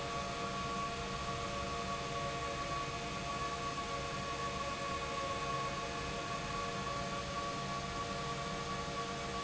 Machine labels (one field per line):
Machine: pump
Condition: abnormal